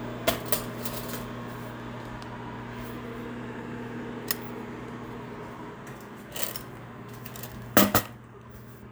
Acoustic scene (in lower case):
kitchen